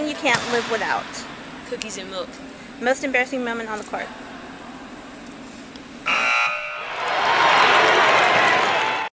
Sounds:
Speech

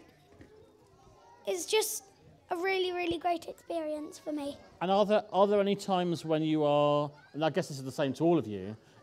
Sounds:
Speech

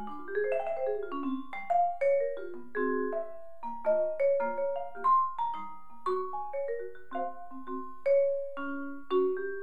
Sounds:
playing vibraphone

